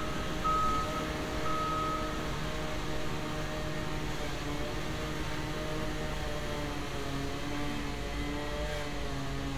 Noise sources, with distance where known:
small or medium rotating saw, near; reverse beeper

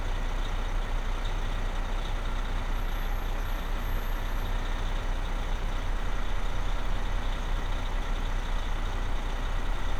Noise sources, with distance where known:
large-sounding engine, near

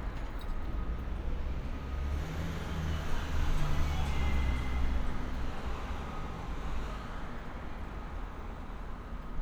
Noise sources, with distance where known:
engine of unclear size; music from a moving source

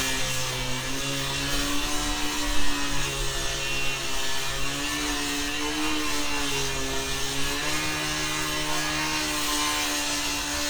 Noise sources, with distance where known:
unidentified powered saw, near

